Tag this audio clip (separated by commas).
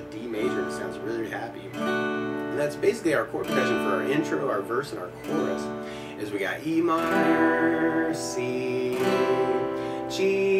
Strum, Speech, Music